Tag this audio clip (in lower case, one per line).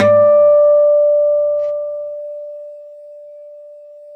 acoustic guitar
guitar
music
musical instrument
plucked string instrument